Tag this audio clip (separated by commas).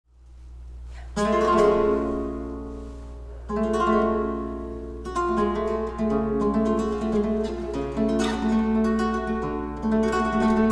Music, Musical instrument, Plucked string instrument, Guitar, Bowed string instrument